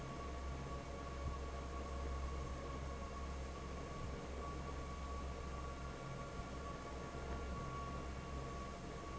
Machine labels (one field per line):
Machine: fan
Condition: normal